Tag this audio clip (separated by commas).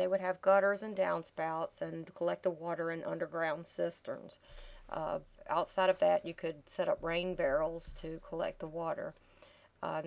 Speech